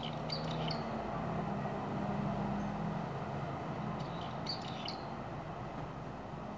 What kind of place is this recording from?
residential area